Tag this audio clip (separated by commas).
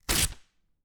Tearing